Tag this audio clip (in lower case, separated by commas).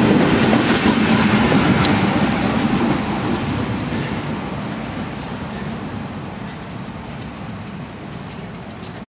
vehicle, engine